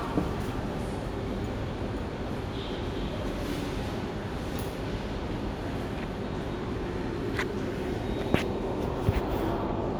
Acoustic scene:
subway station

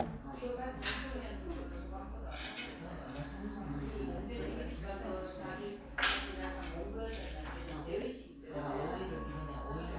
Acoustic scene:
crowded indoor space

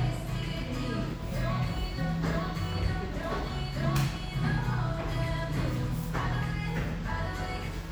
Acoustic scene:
cafe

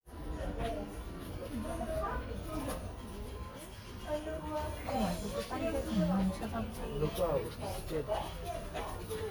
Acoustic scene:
crowded indoor space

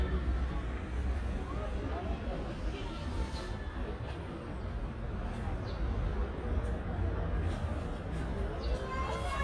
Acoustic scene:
residential area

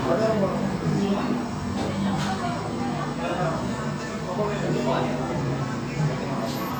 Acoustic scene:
cafe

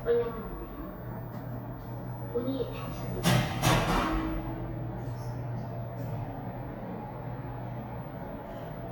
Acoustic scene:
elevator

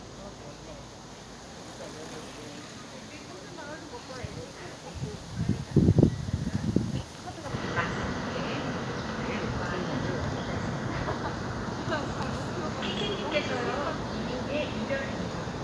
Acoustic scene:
park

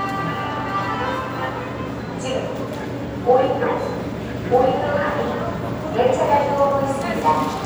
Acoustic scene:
subway station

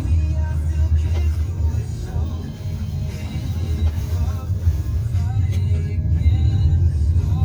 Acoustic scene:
car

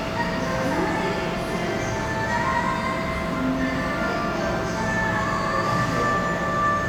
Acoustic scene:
cafe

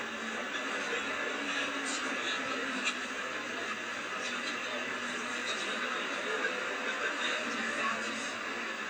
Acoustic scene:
bus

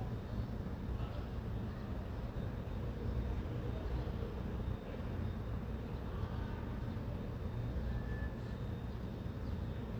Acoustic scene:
residential area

